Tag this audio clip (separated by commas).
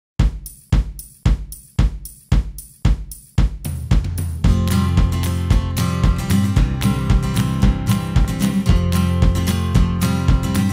Music